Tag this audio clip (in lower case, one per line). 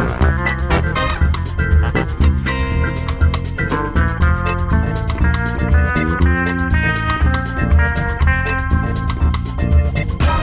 music